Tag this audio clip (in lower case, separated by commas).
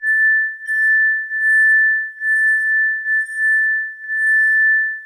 glass